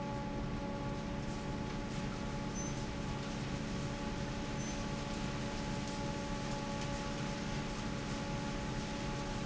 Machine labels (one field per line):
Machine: fan